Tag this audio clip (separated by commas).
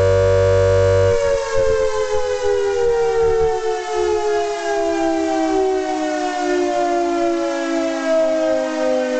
Siren, inside a large room or hall, Civil defense siren